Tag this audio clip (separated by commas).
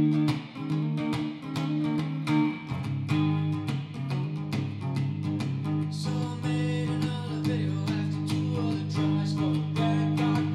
Tender music, Music